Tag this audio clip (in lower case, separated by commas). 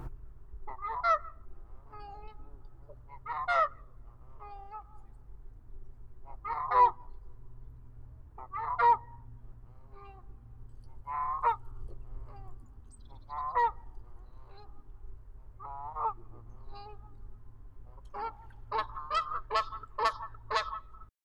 livestock, fowl, animal